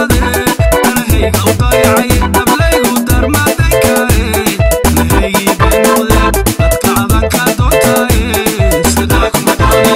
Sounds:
music, afrobeat

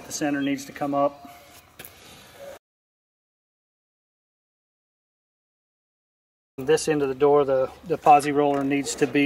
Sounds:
sliding door, speech

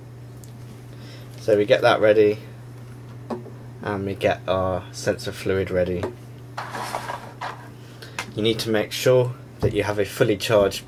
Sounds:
speech

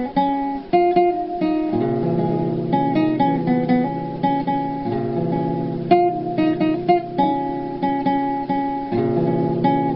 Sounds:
guitar, music, musical instrument, acoustic guitar

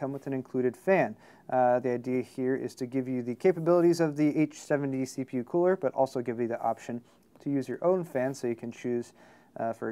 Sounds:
speech

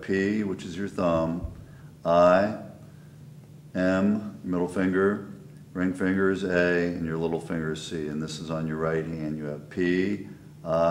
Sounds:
speech

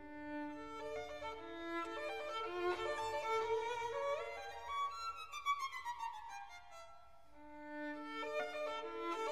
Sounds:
musical instrument, music, violin

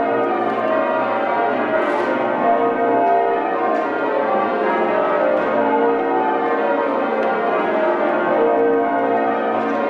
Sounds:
church bell ringing

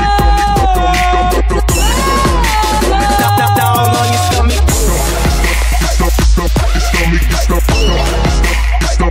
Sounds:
music of africa, music, afrobeat

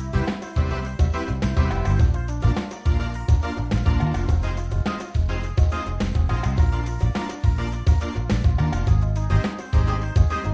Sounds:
music

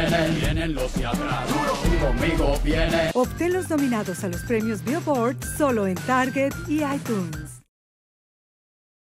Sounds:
music, speech

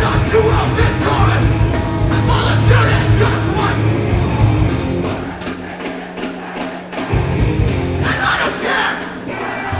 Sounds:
music

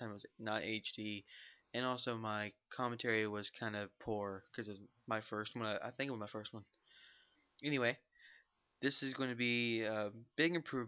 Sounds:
speech

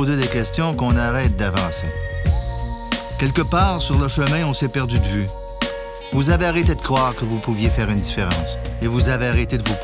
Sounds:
music, speech

